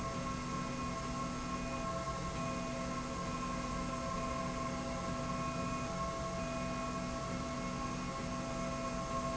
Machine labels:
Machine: slide rail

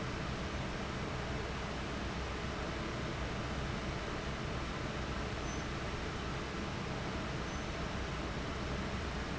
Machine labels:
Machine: fan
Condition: abnormal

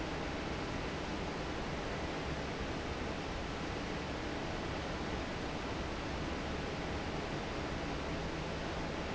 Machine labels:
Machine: fan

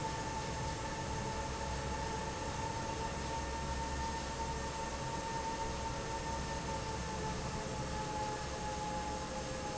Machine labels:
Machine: fan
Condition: normal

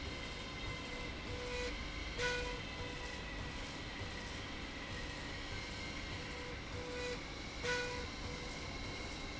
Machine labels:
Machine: slide rail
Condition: normal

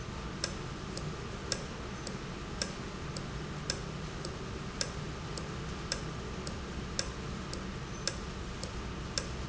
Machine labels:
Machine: valve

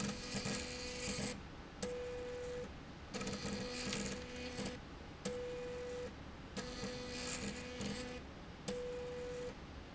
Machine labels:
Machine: slide rail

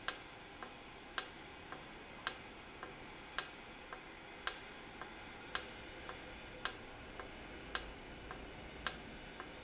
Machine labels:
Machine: valve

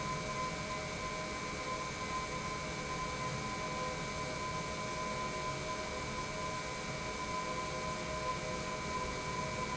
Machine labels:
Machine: pump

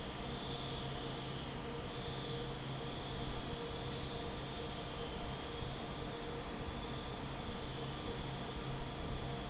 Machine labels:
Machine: fan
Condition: normal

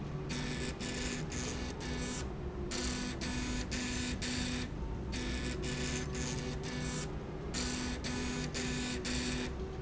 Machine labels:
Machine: slide rail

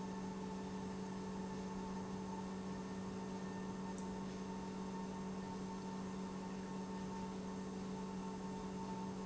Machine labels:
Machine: pump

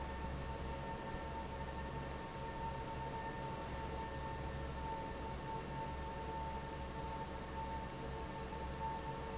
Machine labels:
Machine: fan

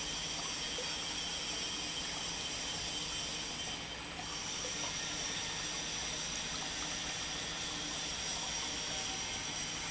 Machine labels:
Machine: pump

